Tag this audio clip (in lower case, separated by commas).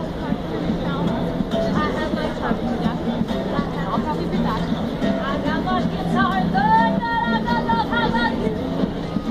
female singing, speech, music